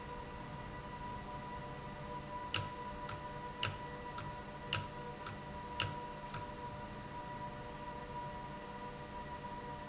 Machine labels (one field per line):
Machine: valve